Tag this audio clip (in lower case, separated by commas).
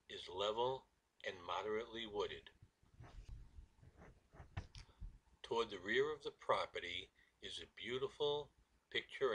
speech, outside, rural or natural